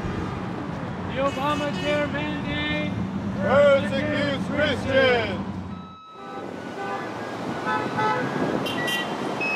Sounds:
Speech

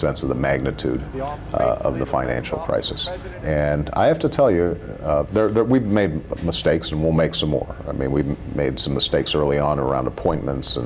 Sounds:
Speech

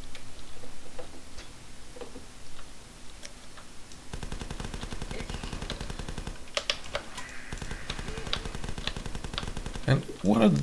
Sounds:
Speech

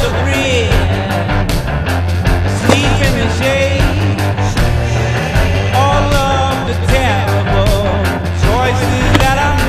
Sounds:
Music, Skateboard

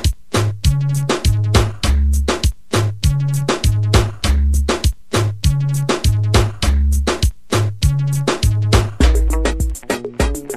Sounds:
Music, Funk

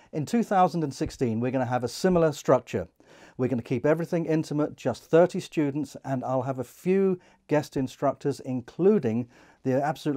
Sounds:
Speech

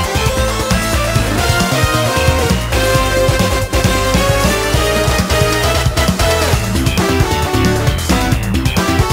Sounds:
Music

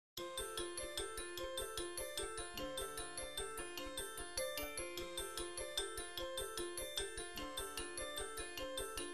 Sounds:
outside, urban or man-made, Music

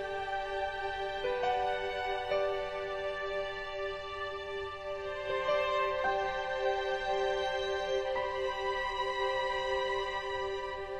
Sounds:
Music

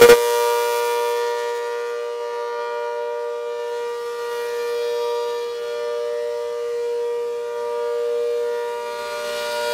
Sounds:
Siren

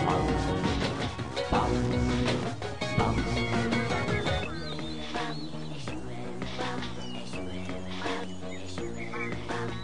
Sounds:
Music

